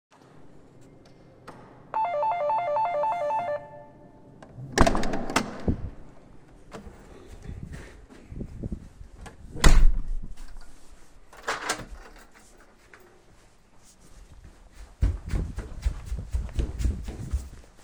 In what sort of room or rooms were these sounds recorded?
hallway